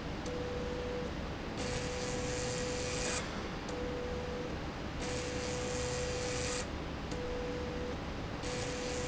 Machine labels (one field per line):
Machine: slide rail